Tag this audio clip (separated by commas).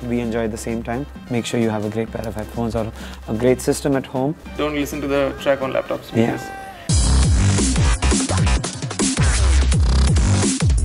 Sizzle, Music